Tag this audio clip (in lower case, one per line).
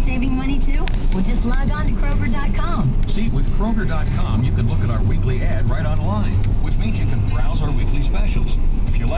speech
music